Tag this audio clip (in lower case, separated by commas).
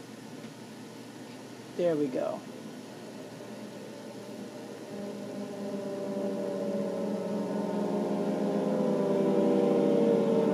speech, sound effect